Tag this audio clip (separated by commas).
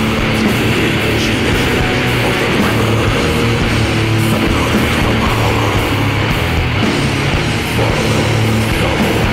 Music, Speech